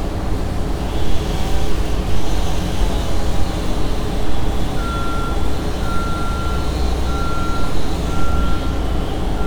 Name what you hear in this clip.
large-sounding engine, reverse beeper